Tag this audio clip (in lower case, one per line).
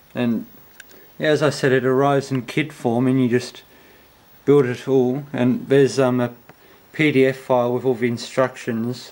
speech